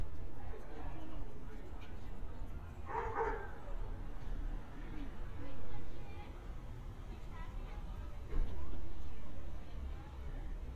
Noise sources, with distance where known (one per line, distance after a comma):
person or small group talking, near
dog barking or whining, near